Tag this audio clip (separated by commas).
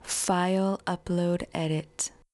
woman speaking, Human voice, Speech